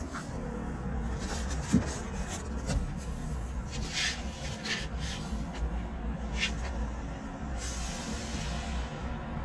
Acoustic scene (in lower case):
residential area